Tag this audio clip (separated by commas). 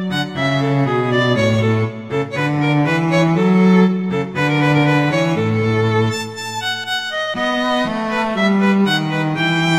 Music, Musical instrument, fiddle